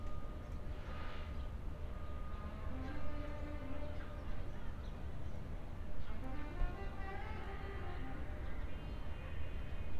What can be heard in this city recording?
unidentified alert signal, music from a fixed source